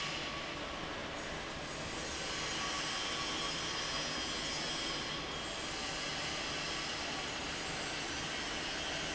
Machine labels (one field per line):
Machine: fan